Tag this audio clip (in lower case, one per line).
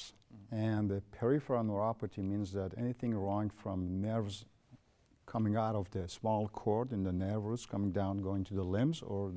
speech